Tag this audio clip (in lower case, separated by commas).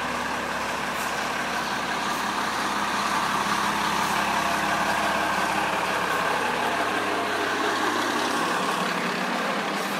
vehicle, truck